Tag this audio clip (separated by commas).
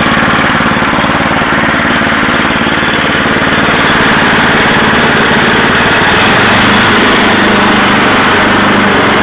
Light engine (high frequency), Tools